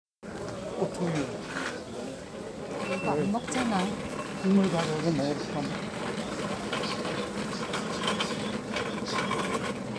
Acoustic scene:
crowded indoor space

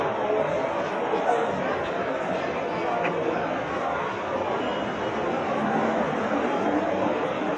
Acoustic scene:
crowded indoor space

